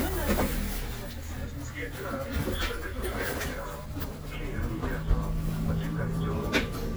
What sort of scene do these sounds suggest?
bus